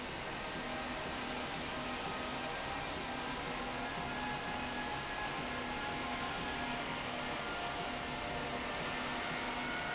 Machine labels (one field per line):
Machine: slide rail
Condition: normal